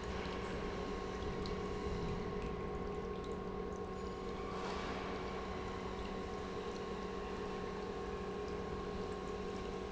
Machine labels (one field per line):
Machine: pump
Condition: normal